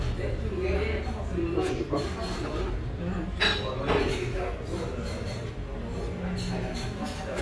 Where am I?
in a restaurant